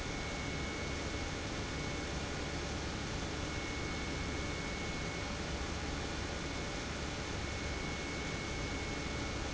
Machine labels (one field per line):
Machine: pump